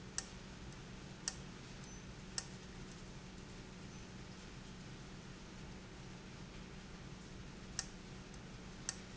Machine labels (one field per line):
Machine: valve